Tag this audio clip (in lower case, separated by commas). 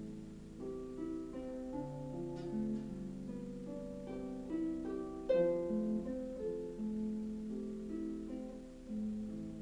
music, harp, musical instrument